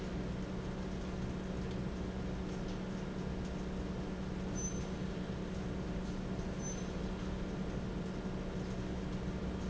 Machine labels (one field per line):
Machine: fan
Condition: normal